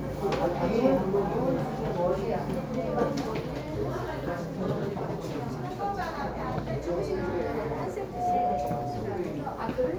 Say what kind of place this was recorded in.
crowded indoor space